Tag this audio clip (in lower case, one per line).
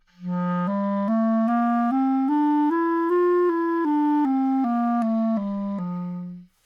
musical instrument
music
woodwind instrument